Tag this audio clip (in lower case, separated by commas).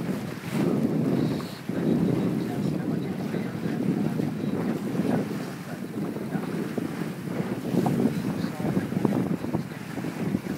kayak, kayak rowing, sailboat, speech